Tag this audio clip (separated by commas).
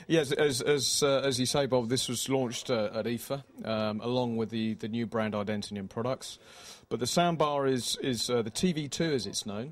Speech